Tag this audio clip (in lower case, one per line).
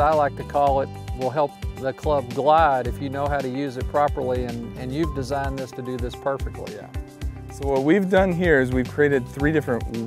speech
music